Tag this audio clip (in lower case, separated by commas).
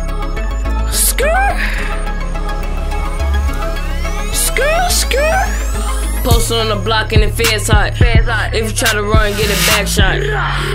music